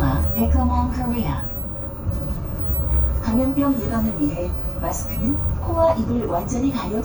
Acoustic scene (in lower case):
bus